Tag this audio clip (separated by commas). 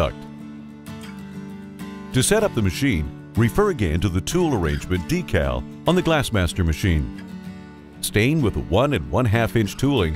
Speech, Music